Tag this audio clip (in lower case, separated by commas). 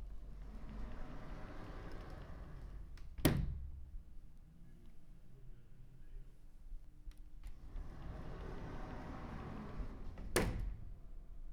sliding door, door, domestic sounds